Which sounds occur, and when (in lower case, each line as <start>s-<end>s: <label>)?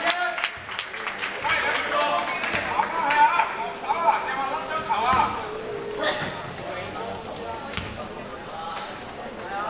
0.0s-0.4s: man speaking
0.0s-0.5s: shout
0.0s-9.6s: background noise
0.0s-9.6s: conversation
0.0s-9.6s: crowd
0.0s-0.1s: clapping
0.4s-0.5s: clapping
0.7s-1.2s: clapping
0.8s-5.4s: man speaking
1.4s-1.8s: clapping
1.9s-2.2s: clapping
2.4s-2.5s: clapping
2.7s-3.5s: shout
3.0s-3.2s: clapping
3.8s-4.0s: clapping
4.3s-4.4s: clapping
4.9s-5.5s: shout
5.1s-5.3s: basketball bounce
5.4s-5.9s: human voice
5.5s-5.8s: beep
5.9s-6.3s: sneeze
6.6s-9.0s: man speaking
7.7s-7.9s: basketball bounce
8.7s-8.8s: tick
9.2s-9.6s: man speaking